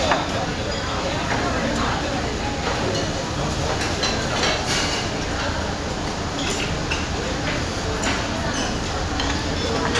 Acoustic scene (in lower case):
crowded indoor space